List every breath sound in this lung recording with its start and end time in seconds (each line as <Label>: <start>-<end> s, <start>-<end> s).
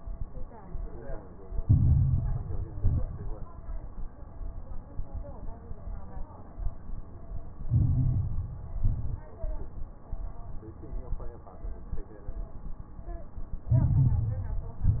Inhalation: 1.59-2.77 s, 7.68-8.78 s, 13.72-14.80 s
Exhalation: 2.81-3.46 s, 8.84-9.25 s, 14.82-15.00 s
Crackles: 1.59-2.77 s, 2.81-3.46 s, 7.68-8.78 s, 8.84-9.25 s, 13.72-14.80 s, 14.82-15.00 s